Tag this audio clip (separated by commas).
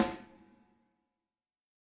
Drum, Snare drum, Musical instrument, Percussion, Music